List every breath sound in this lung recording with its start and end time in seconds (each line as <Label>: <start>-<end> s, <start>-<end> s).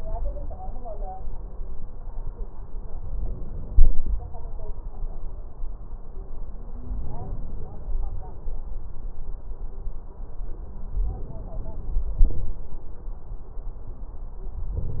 Inhalation: 3.08-4.11 s, 6.80-7.83 s, 10.96-12.03 s
Exhalation: 12.20-12.60 s